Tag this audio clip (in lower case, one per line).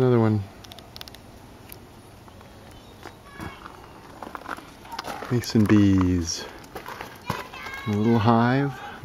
speech